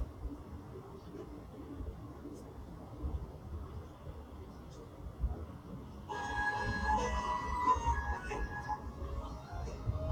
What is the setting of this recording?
subway train